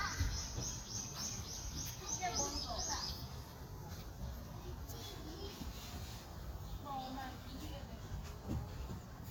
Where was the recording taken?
in a park